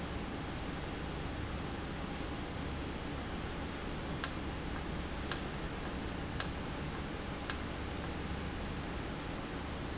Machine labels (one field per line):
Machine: valve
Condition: normal